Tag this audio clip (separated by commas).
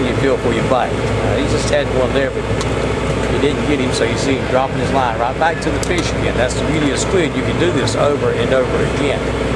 Speech, Vehicle, speedboat, Water vehicle